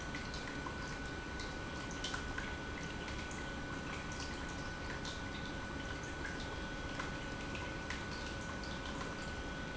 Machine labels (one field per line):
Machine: pump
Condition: normal